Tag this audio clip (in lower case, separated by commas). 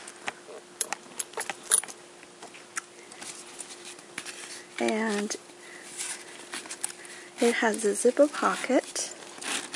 zipper (clothing), speech